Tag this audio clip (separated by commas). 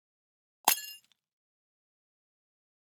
Shatter, Glass